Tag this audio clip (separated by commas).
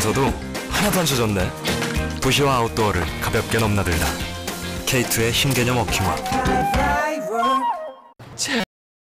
Music, Speech, Walk